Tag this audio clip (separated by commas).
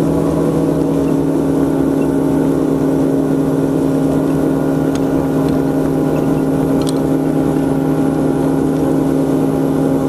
Vehicle, Water vehicle, speedboat